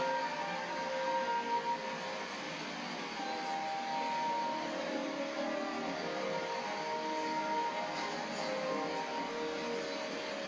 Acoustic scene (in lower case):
cafe